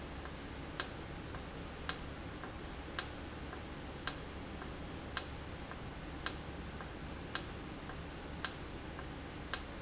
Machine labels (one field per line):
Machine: valve